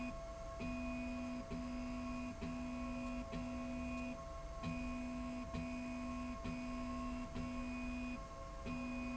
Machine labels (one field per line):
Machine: slide rail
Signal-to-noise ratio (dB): 6 dB